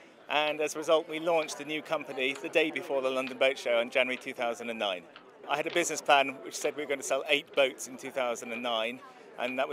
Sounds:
Speech

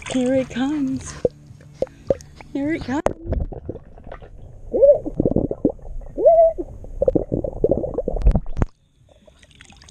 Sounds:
underwater bubbling

